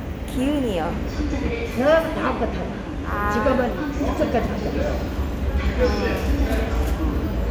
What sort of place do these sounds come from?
subway station